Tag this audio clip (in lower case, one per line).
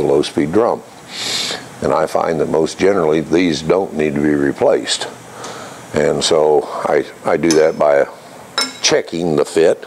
speech